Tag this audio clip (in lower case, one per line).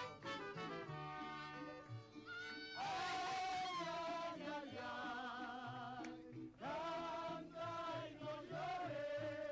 music
male singing
choir